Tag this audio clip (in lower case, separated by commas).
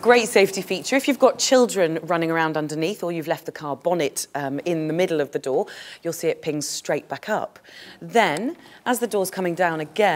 speech